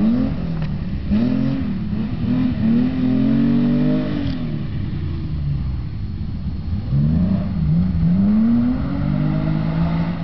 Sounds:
car, vehicle, motor vehicle (road)

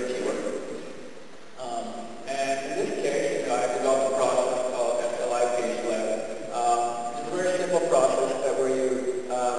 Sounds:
speech

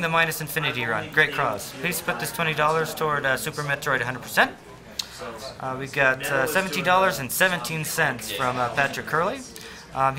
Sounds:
speech

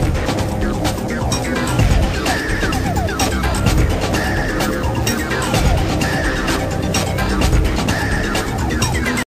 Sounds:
theme music, music

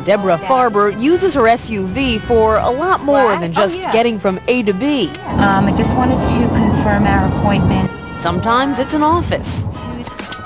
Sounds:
car, motor vehicle (road), speech, vehicle, music

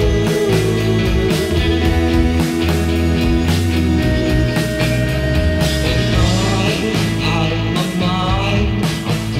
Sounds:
music

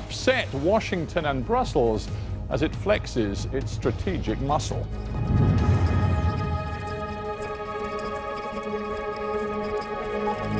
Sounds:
speech, music

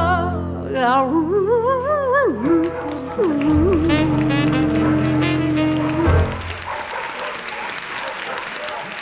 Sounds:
applause, pets, speech, dog, animal, music

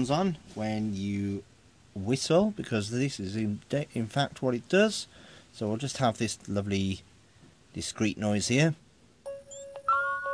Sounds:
speech

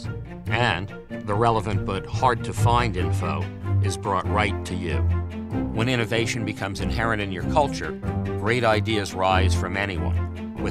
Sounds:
speech, music

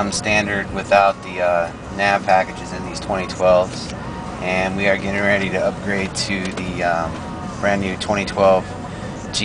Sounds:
music, speech

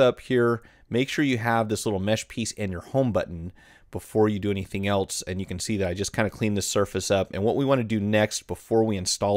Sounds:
speech

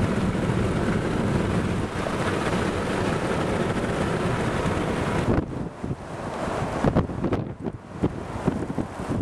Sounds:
vehicle, thunderstorm

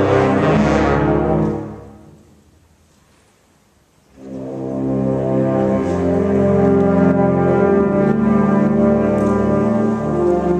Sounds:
orchestra, music

